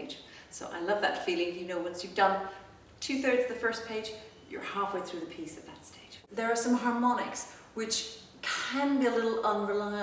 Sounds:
Speech

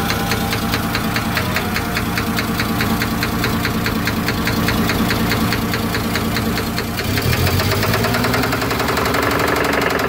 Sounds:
car engine knocking

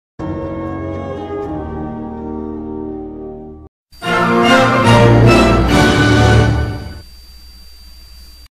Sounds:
Music

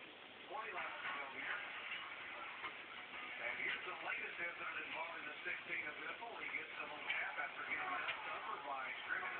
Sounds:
Speech

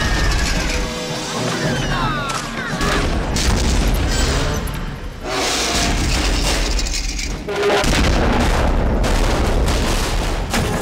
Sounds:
Speech, Fusillade

